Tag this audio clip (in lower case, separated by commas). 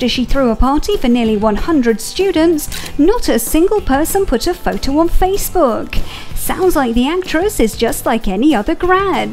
music, speech